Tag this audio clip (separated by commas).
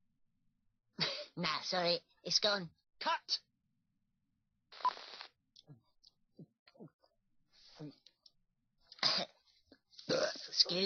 Speech